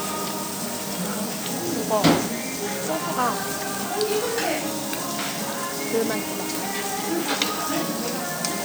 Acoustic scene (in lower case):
restaurant